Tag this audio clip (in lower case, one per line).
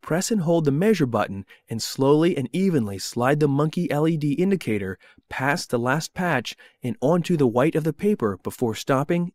speech